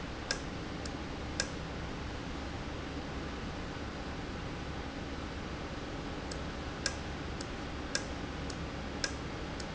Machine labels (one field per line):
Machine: valve